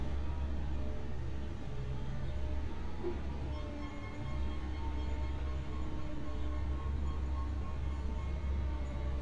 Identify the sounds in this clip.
unidentified alert signal